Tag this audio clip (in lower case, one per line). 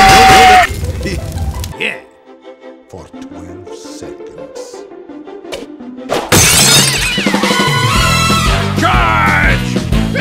music
speech